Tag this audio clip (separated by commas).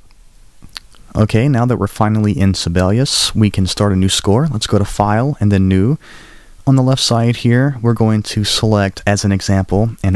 Speech